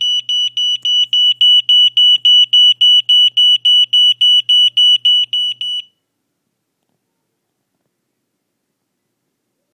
Continuos beeping